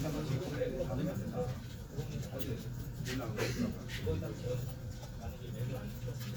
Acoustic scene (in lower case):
crowded indoor space